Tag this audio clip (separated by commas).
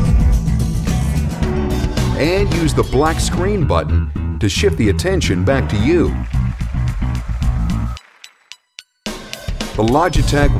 Speech, Music